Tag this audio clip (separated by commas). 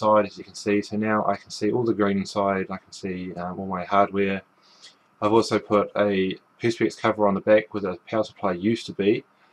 Speech